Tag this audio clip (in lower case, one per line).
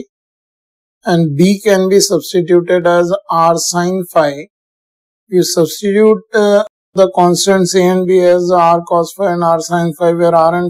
speech